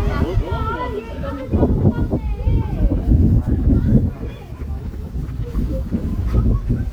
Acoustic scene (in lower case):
residential area